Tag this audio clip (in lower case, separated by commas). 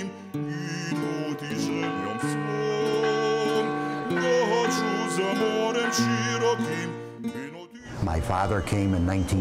music, speech